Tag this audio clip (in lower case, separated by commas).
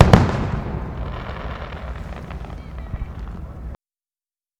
fireworks, explosion